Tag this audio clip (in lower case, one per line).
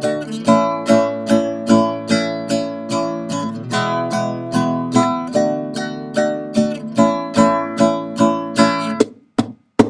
music
plucked string instrument
musical instrument
guitar
strum